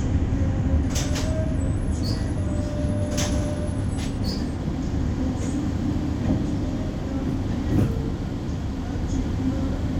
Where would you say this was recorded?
on a bus